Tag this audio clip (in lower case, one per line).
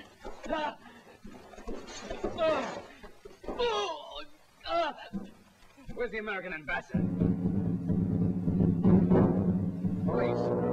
speech
music